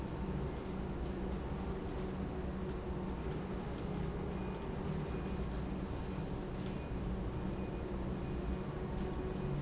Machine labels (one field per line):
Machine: pump